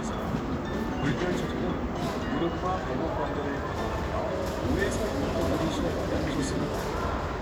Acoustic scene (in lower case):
crowded indoor space